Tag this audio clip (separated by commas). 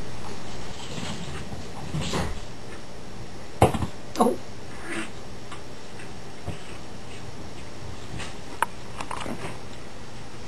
Animal